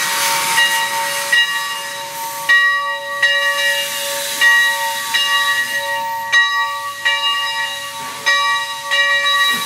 Railroading cross signal with steam/hiss